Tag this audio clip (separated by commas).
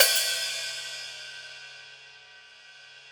Percussion, Cymbal, Music, Hi-hat, Musical instrument